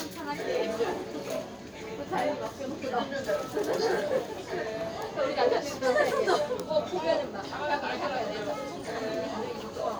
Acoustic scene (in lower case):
crowded indoor space